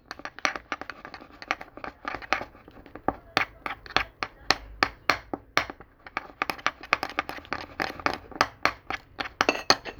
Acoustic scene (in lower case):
kitchen